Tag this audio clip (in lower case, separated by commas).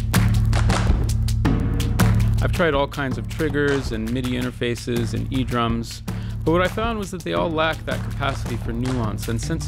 speech, music, percussion